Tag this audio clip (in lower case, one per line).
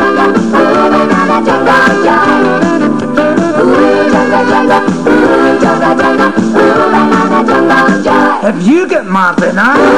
singing